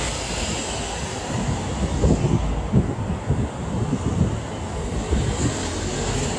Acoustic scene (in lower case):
street